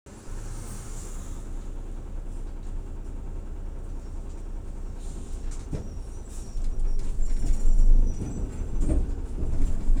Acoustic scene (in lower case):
bus